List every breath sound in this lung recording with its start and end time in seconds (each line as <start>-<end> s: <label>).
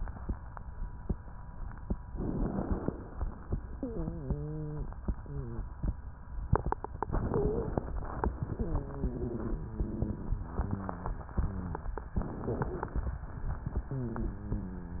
2.07-3.03 s: inhalation
3.77-4.90 s: wheeze
5.22-5.64 s: wheeze
7.01-7.91 s: inhalation
7.23-7.75 s: wheeze
8.43-10.46 s: wheeze
10.48-11.26 s: wheeze
11.32-11.91 s: wheeze
12.15-13.07 s: inhalation
12.43-12.91 s: wheeze
13.87-15.00 s: wheeze